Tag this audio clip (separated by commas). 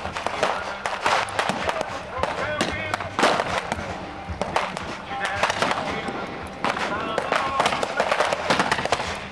Speech